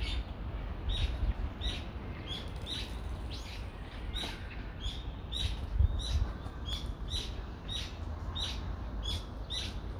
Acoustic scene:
residential area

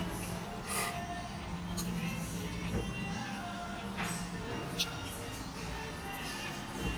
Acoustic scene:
restaurant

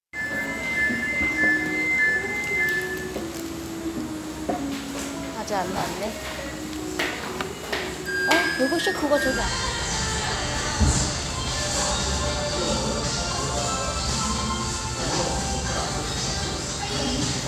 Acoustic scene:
restaurant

